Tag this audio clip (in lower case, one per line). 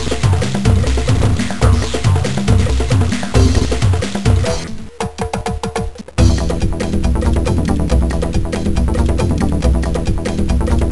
music